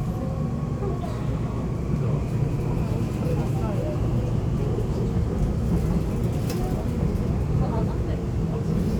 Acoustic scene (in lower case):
subway train